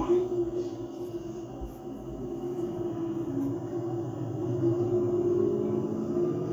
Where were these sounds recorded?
on a bus